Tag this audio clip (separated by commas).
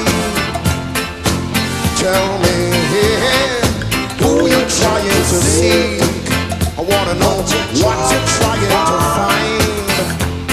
Music